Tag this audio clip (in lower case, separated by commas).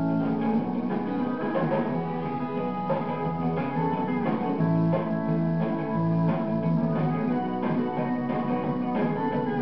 music